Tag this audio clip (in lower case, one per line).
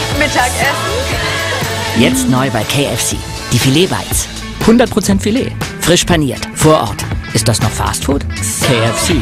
speech
music